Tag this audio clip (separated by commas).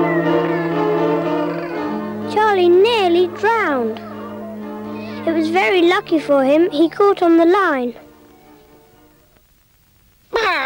Music, Speech